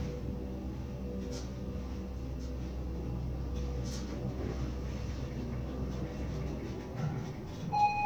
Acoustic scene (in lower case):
elevator